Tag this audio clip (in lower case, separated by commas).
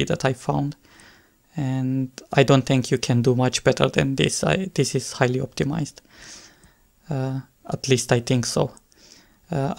speech